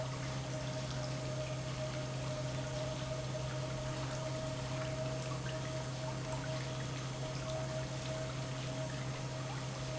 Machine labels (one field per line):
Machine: pump